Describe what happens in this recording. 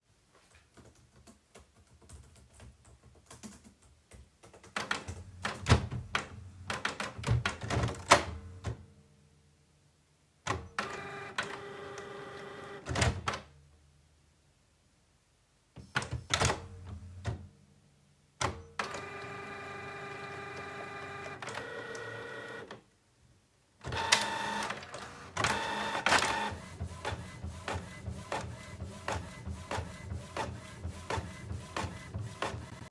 I sat at my desk and typed continuously on my mechanical keyboard. then I printed some papers.